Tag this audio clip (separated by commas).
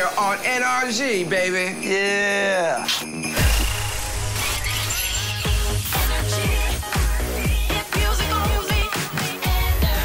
Music, Speech